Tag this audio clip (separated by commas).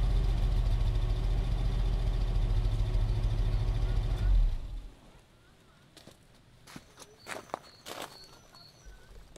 Rustle